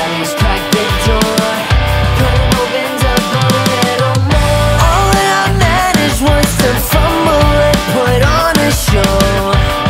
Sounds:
dance music
music

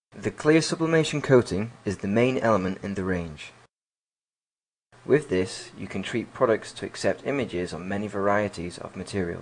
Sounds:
speech

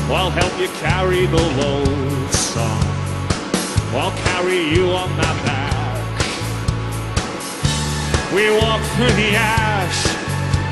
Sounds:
music

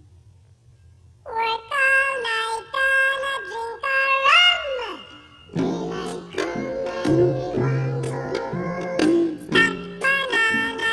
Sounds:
music

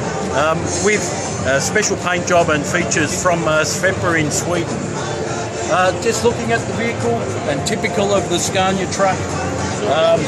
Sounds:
music
speech

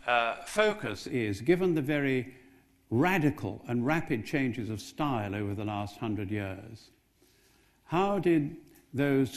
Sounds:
speech

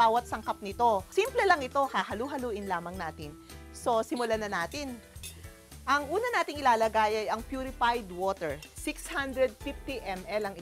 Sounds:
music
speech

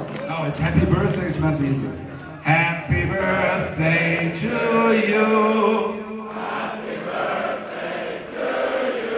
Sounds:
speech

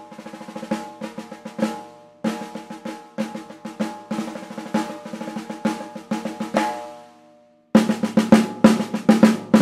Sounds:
playing snare drum

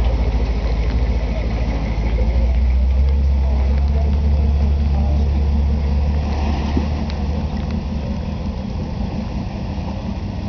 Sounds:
speech

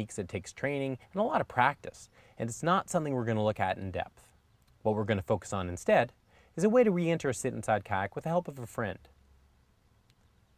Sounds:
speech

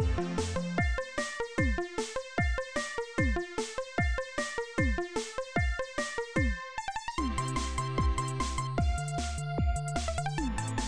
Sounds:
music

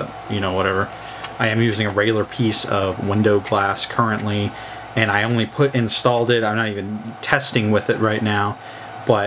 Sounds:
speech

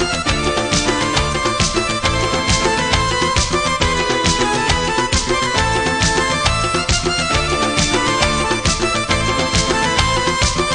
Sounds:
music
happy music

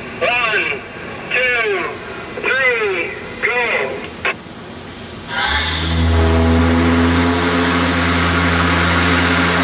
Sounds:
steam
hiss

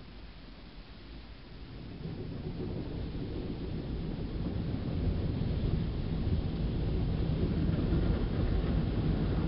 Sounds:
vehicle

